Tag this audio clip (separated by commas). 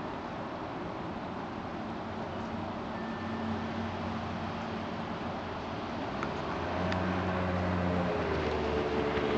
Sailboat